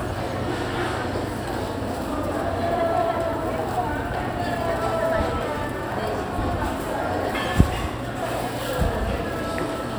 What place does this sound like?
crowded indoor space